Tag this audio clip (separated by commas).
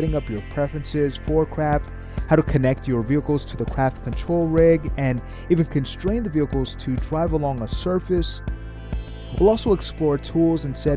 Music, Speech